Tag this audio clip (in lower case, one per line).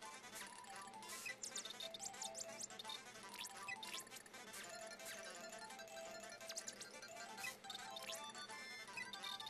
music